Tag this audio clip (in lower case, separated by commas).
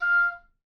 musical instrument, wind instrument, music